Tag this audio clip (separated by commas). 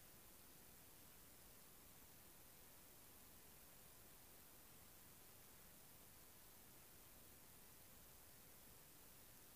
Speech